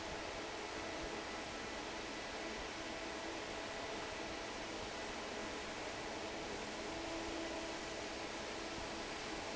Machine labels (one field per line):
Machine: fan